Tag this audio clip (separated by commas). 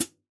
Cymbal, Music, Percussion, Musical instrument, Hi-hat